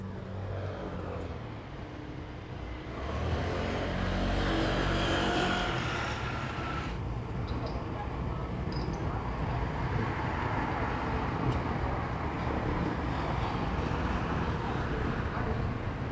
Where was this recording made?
in a residential area